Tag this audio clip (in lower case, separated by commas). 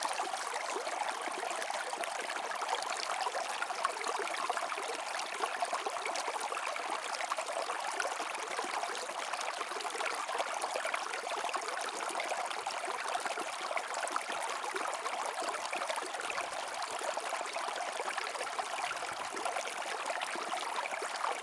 stream, water